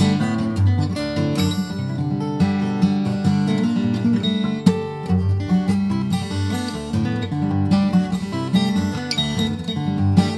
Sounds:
Acoustic guitar, Plucked string instrument, Musical instrument, Guitar, Music

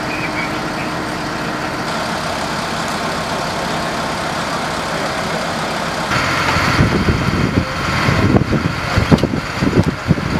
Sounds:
Vehicle

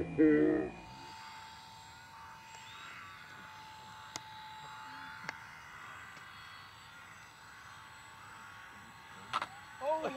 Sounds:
Speech

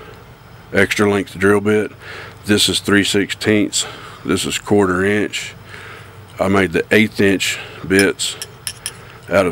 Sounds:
Speech

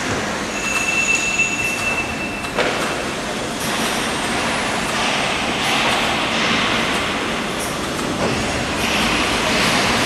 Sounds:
Printer

